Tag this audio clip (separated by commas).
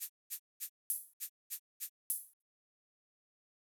Music, Rattle (instrument), Percussion, Musical instrument